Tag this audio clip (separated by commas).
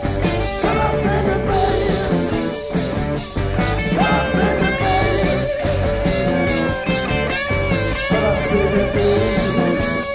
Music, Blues